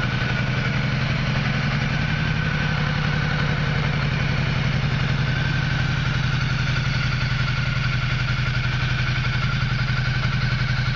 A motorcycle idling softly